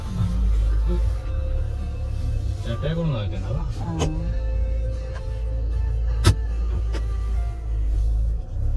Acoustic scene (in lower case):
car